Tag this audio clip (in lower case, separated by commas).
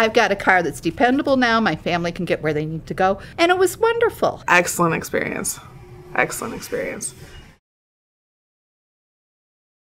speech